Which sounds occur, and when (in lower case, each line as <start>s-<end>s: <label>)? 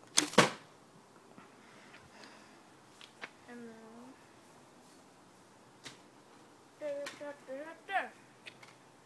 0.0s-9.0s: mechanisms
0.1s-0.5s: thump
1.3s-2.6s: breathing
6.7s-8.0s: human voice
8.6s-8.7s: clicking